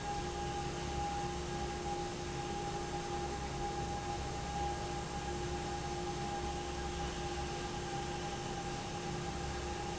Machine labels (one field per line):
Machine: fan